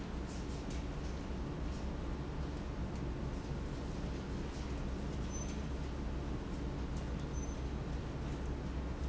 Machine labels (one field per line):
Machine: pump